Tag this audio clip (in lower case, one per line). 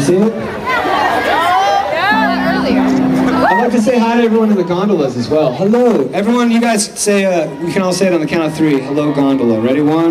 speech
music